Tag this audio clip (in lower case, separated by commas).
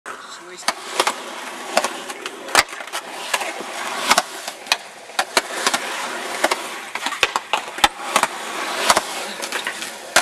speech, outside, urban or man-made